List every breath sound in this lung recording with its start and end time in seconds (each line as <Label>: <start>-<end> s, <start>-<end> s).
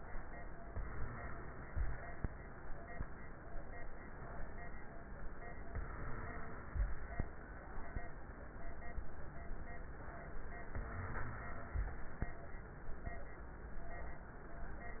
Inhalation: 0.74-2.24 s, 5.74-7.24 s, 10.70-12.20 s